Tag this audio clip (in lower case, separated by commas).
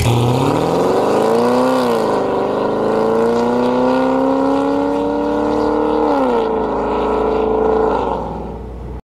vehicle